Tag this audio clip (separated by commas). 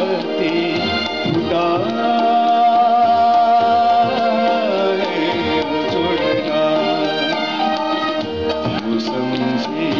Music, Singing